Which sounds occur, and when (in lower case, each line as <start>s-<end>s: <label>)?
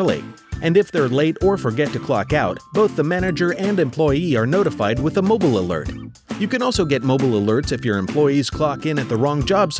0.0s-0.3s: male speech
0.0s-9.7s: music
0.5s-6.1s: male speech
6.3s-9.7s: male speech